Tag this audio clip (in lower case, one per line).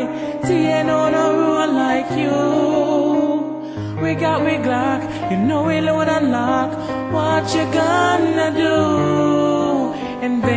music